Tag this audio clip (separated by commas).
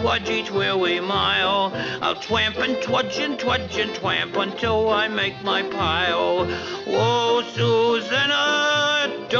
Male singing, Music